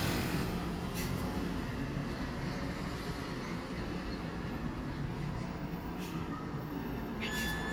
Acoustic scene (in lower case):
residential area